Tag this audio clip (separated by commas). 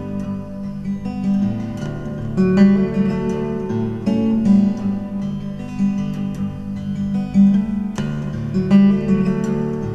Plucked string instrument, Strum, Musical instrument, Acoustic guitar, Music, Guitar